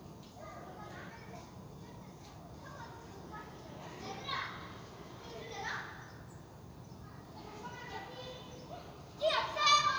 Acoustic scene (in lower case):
residential area